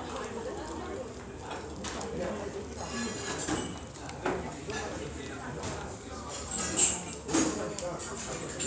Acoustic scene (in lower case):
restaurant